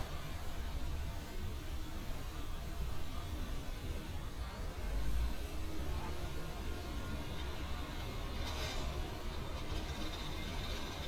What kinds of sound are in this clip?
engine of unclear size